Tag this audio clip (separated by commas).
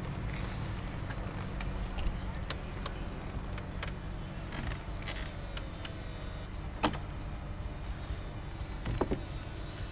Door, Car, Vehicle